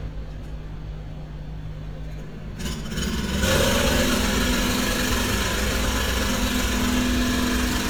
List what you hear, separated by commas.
engine of unclear size